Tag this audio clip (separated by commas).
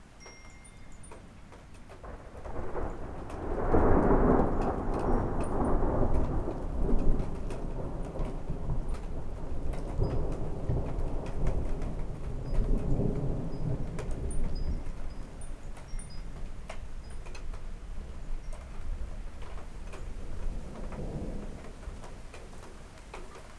Thunderstorm, Thunder